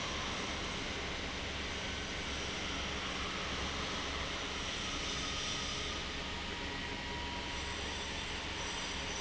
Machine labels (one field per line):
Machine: fan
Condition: abnormal